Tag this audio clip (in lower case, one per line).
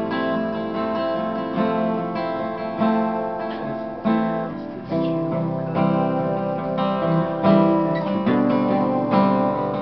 music